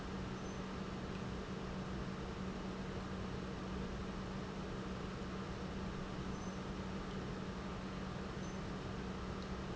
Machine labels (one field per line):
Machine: pump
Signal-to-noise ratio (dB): 0 dB